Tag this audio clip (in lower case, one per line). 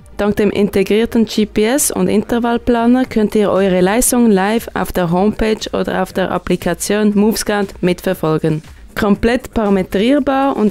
speech
music